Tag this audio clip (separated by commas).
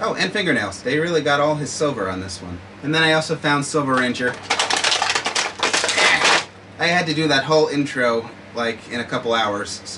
inside a small room, Speech